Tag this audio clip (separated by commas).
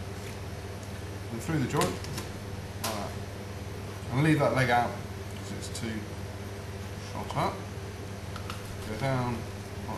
Speech